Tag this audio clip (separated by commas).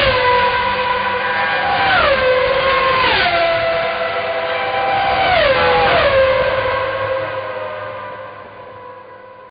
Music